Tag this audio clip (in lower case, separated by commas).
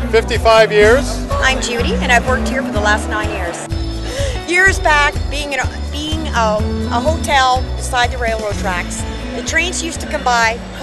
music, speech